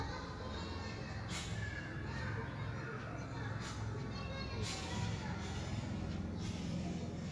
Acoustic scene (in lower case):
park